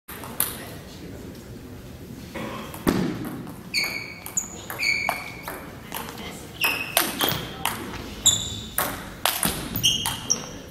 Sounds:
playing table tennis

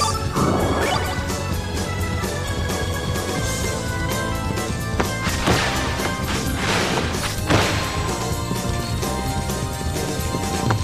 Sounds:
Music

